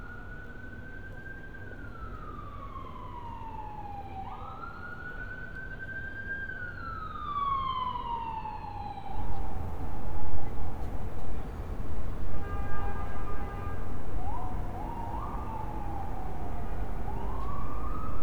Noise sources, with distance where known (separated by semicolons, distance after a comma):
siren